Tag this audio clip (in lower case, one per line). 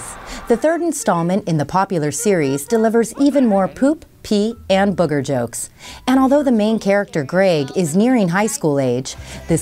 speech
music